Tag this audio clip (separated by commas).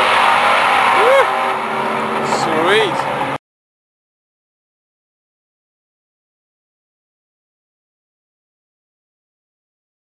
Car, Speech, Vehicle